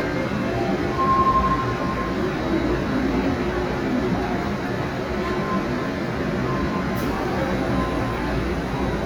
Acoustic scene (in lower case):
subway train